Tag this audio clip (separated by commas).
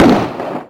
Explosion